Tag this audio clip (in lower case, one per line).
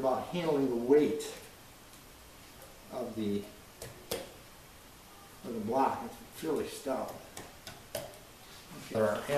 inside a small room
speech